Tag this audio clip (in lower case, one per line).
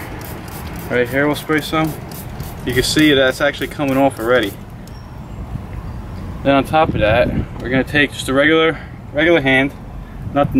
speech